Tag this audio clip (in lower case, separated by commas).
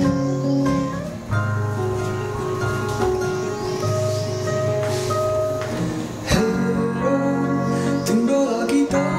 music